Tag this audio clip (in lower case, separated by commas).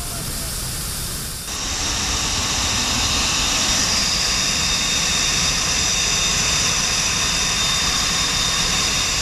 jet engine